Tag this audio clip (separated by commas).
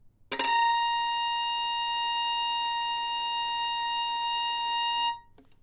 Bowed string instrument, Music, Musical instrument